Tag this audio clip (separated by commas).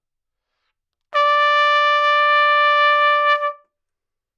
Brass instrument, Music, Trumpet, Musical instrument